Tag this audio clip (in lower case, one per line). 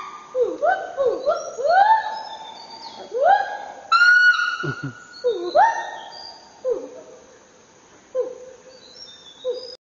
bird
bird call
chirp